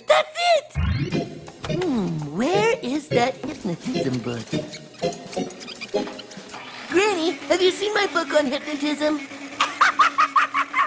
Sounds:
speech, music

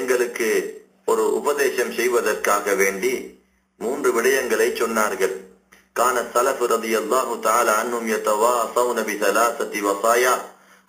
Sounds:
man speaking, narration, speech

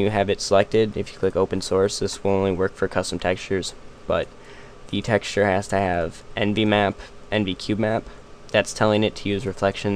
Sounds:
speech

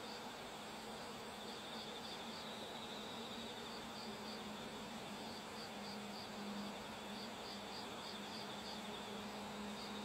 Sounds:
animal

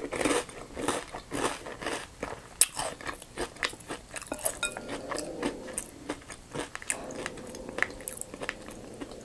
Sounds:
people slurping

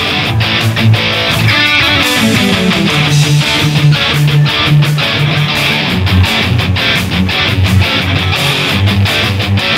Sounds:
musical instrument, guitar, music

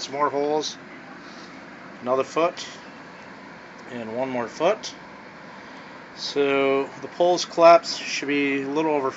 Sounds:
speech

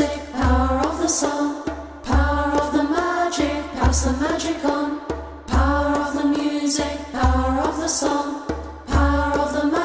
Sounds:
music

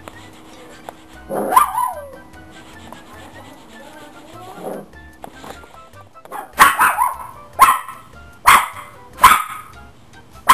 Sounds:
music, bark

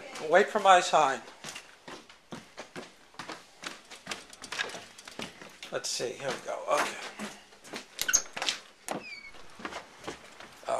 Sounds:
speech

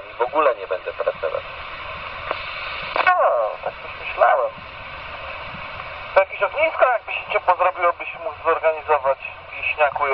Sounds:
radio, speech

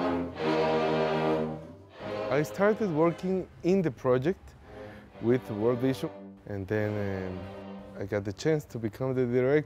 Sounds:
speech, music

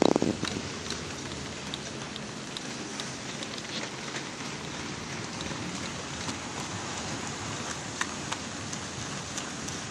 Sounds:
rail transport, train

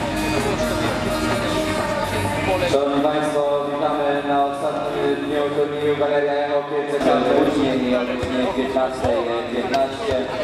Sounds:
speech, music

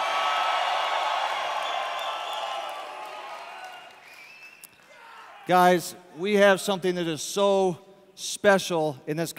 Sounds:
male speech, speech, monologue

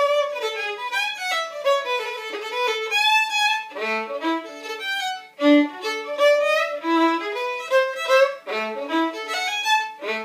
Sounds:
playing violin, musical instrument, music, fiddle

